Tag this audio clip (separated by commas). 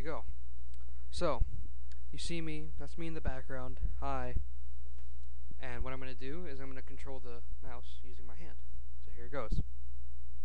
Speech